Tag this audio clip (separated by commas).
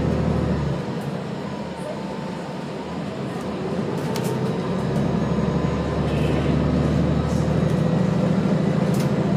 Bus, driving buses, Vehicle